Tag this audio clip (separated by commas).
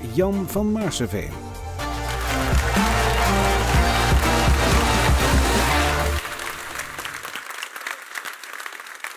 Speech, Music